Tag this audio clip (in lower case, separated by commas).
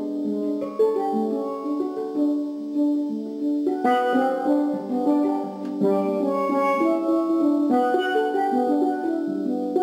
steelpan, music